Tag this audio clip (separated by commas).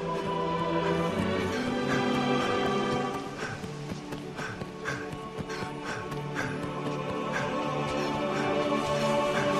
Music, Run